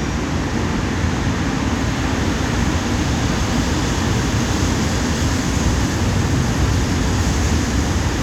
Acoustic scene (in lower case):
subway station